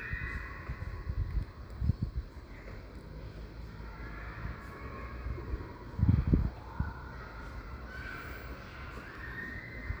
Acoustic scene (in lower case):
residential area